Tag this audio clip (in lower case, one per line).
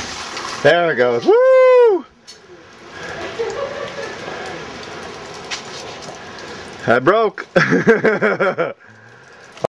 speech